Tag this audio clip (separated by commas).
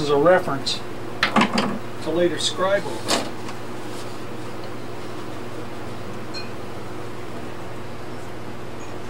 Speech